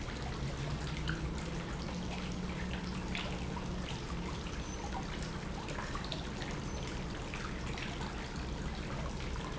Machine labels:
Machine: pump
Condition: normal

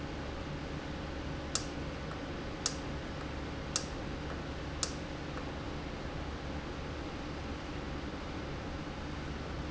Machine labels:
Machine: valve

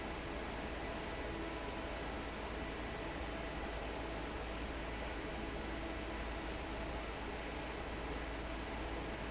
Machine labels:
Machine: fan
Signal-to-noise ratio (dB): 0 dB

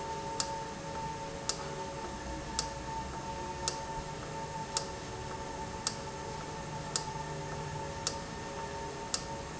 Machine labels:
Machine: valve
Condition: normal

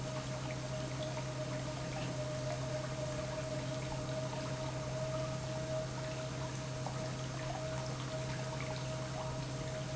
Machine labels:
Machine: pump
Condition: normal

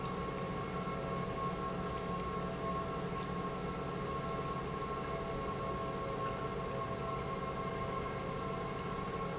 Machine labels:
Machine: pump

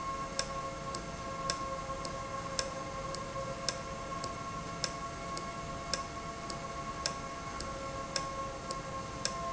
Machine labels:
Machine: valve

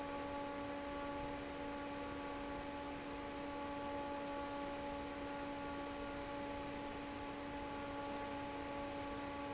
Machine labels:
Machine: fan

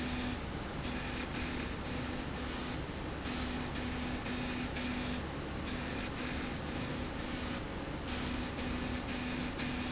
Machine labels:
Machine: slide rail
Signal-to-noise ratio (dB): -6 dB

